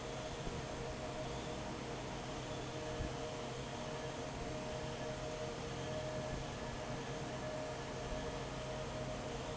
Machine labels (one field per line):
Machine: fan